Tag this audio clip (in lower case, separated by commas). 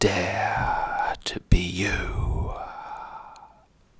human voice, whispering